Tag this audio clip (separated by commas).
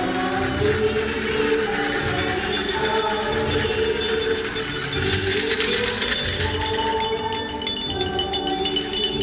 Singing, Tambourine, Music